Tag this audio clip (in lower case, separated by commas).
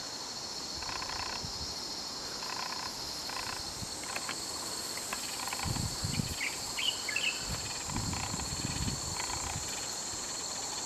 animal, bird, outside, rural or natural